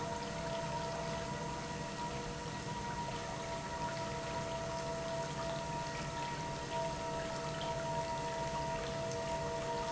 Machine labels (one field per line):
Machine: pump